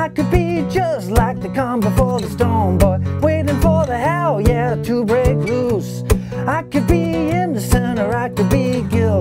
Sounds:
Guitar, Plucked string instrument, Musical instrument, Acoustic guitar, Music

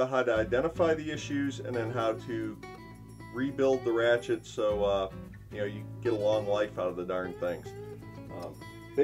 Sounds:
Music, Speech

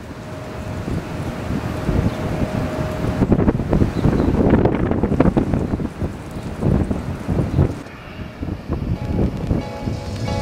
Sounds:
Music, outside, urban or man-made

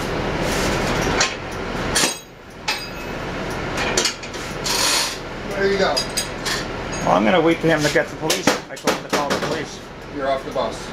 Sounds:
Speech, Bus

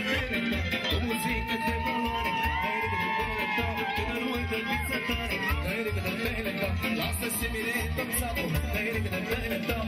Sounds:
Music, Jazz, Dance music, Funk, Happy music

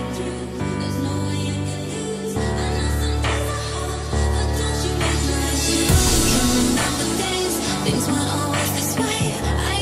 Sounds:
Music, Dubstep, Electronic music

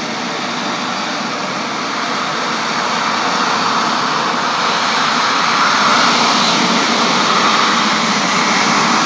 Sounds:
Vehicle, outside, urban or man-made

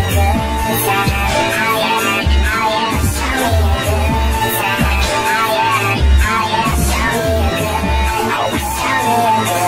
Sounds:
Music

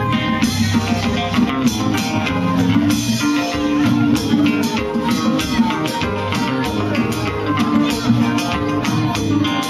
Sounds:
Speech, Music

